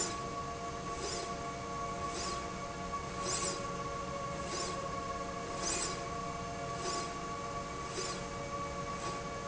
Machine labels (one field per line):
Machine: slide rail